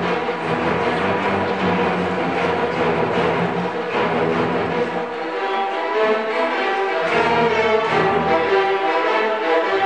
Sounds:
music, orchestra

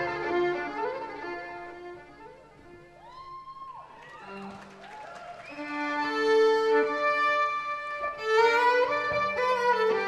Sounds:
violin, musical instrument, music

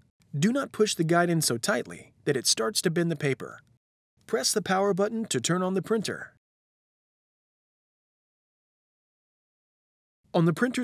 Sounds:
speech

